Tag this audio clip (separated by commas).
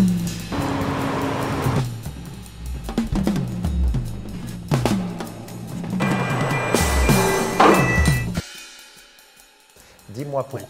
Ping, Music